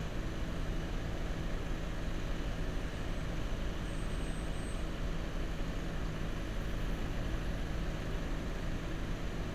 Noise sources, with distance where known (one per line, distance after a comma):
engine of unclear size, far